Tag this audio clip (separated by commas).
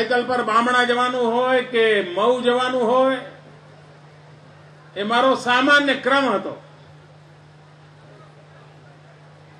Speech, Narration, Male speech, Speech synthesizer